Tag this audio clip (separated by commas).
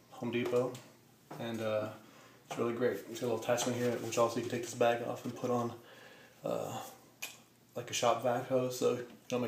Speech